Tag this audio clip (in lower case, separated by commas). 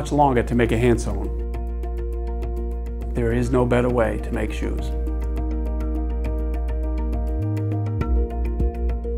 speech, music